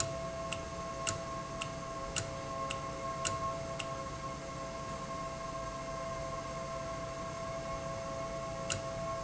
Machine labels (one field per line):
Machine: valve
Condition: normal